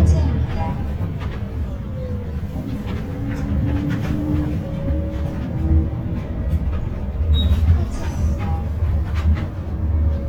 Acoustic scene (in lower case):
bus